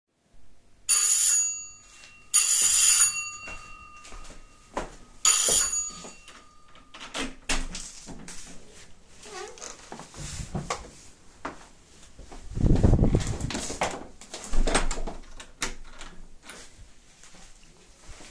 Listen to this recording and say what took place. the bell ring, I walk, open the door, my roommate enter, I close the door